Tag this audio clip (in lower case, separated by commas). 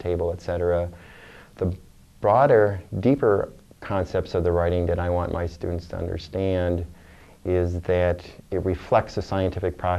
speech